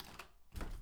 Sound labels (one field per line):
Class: window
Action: opening